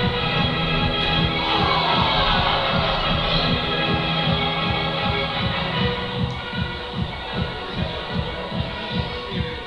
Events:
[0.00, 9.65] music
[1.35, 3.03] shout
[6.28, 6.37] tick
[7.70, 8.37] male singing
[9.29, 9.65] male singing

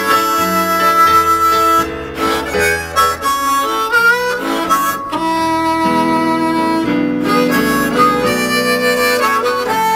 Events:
[0.00, 9.95] music

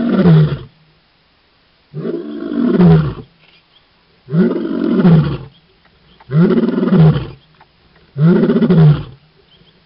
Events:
[0.00, 0.71] roar
[0.00, 9.85] wind
[1.88, 3.24] roar
[3.36, 3.83] tweet
[4.24, 5.52] roar
[5.50, 5.75] tweet
[5.83, 5.88] tick
[6.03, 6.25] tweet
[6.17, 6.22] tick
[6.21, 7.41] roar
[7.56, 7.63] tick
[8.13, 9.22] roar
[9.49, 9.74] tweet

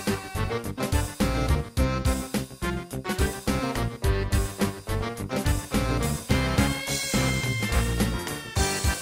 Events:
[0.00, 9.01] music

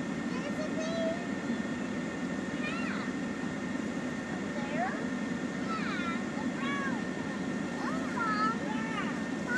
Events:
[0.00, 9.55] mechanisms
[0.00, 9.55] wind
[0.24, 1.17] kid speaking
[2.60, 3.12] kid speaking
[4.54, 5.06] kid speaking
[5.69, 6.18] kid speaking
[6.55, 7.01] kid speaking
[7.75, 9.20] kid speaking

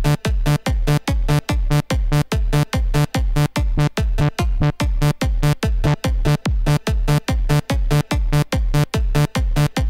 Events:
[0.00, 9.85] music
[0.02, 0.13] sound effect
[0.45, 0.55] sound effect
[0.85, 1.00] sound effect
[1.25, 1.39] sound effect
[1.68, 1.79] sound effect
[2.10, 2.20] sound effect
[2.54, 2.62] sound effect
[2.91, 3.03] sound effect
[3.32, 3.45] sound effect
[3.77, 3.87] sound effect
[4.14, 4.28] sound effect
[4.60, 4.72] sound effect
[4.98, 5.11] sound effect
[5.40, 5.52] sound effect
[5.83, 5.96] sound effect
[6.25, 6.37] sound effect
[6.66, 6.75] sound effect
[7.06, 7.17] sound effect
[7.49, 7.62] sound effect
[7.89, 8.01] sound effect
[8.32, 8.43] sound effect
[8.72, 8.83] sound effect
[9.14, 9.24] sound effect
[9.55, 9.67] sound effect

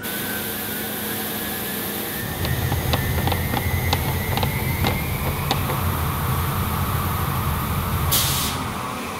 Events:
[0.00, 9.15] mechanisms
[2.38, 2.44] tick
[2.66, 2.74] tick
[2.90, 2.96] tick
[3.24, 3.30] tick
[3.50, 3.58] tick
[3.85, 3.94] tick
[4.33, 4.41] tick
[4.79, 4.86] tick
[5.21, 5.26] tick
[5.46, 5.51] tick
[5.68, 5.71] tick
[8.08, 8.54] steam

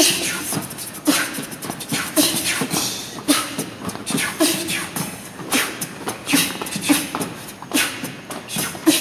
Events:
[0.01, 9.00] music
[0.04, 0.48] human voice
[0.96, 5.12] human voice
[5.25, 7.47] human voice
[7.70, 9.00] human voice

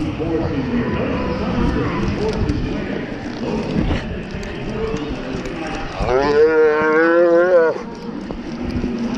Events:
[0.00, 0.95] male speech
[0.00, 9.15] background noise
[0.00, 9.15] crowd
[2.01, 2.68] generic impact sounds
[2.10, 2.53] male speech
[3.15, 4.06] generic impact sounds
[3.37, 3.63] animal
[4.21, 6.16] generic impact sounds
[5.95, 7.79] moo
[7.81, 9.15] generic impact sounds

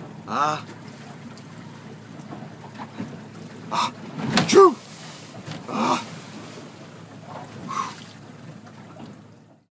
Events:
[0.00, 9.66] water
[0.03, 9.64] speedboat
[0.21, 0.57] male speech
[0.59, 1.49] generic impact sounds
[2.33, 3.21] generic impact sounds
[3.68, 3.88] male speech
[4.20, 4.73] male speech
[4.24, 4.43] generic impact sounds
[4.61, 6.86] splatter
[5.44, 5.59] generic impact sounds
[5.61, 5.98] male speech
[7.24, 7.55] generic impact sounds
[7.62, 8.10] breathing
[8.60, 9.16] generic impact sounds

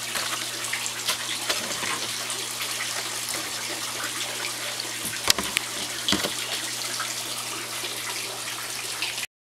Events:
[0.00, 9.24] water
[0.00, 9.25] mechanisms
[5.49, 5.57] tick
[8.97, 9.07] generic impact sounds

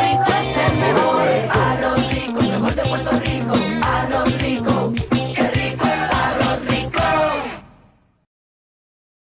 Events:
[0.00, 7.55] choir
[0.00, 7.58] music
[0.00, 8.24] background noise

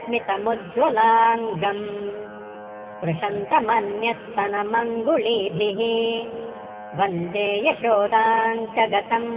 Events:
[0.00, 2.23] mantra
[0.00, 9.35] music
[2.97, 6.27] mantra
[6.90, 9.35] mantra

